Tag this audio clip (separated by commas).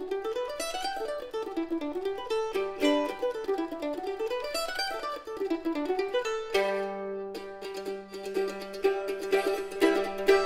Mandolin, Music